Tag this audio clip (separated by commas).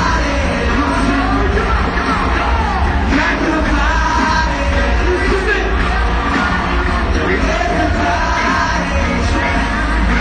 Singing, Music